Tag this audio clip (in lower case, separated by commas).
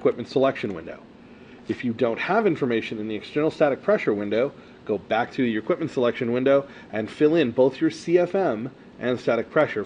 speech